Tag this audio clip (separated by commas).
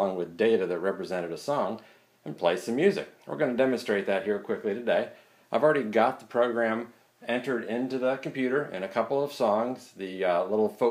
Speech